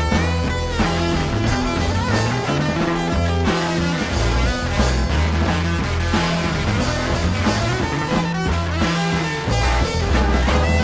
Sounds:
Music, Rock music, Psychedelic rock

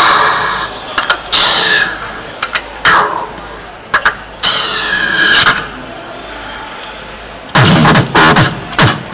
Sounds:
Beatboxing, Music

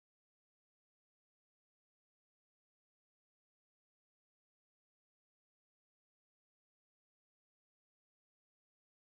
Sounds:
Music

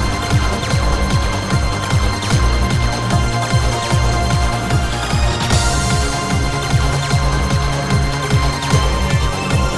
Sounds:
Music

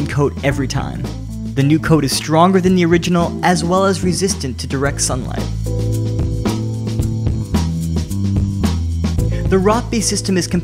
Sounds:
Music, Speech

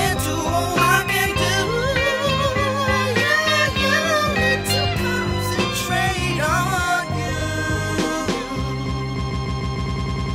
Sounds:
Music

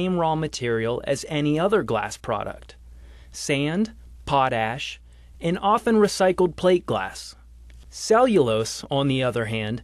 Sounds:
Speech

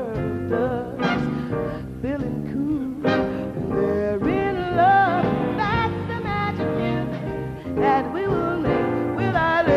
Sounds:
Music

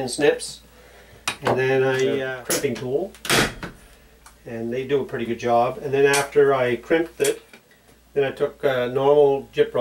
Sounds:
Speech

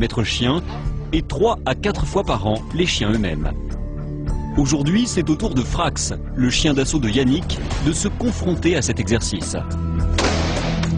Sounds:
Speech

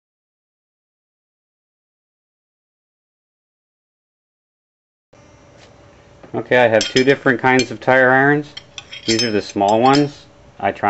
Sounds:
Speech, Tools

